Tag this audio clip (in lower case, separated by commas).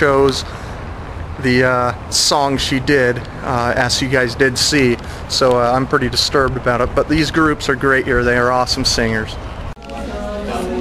speech, male speech, monologue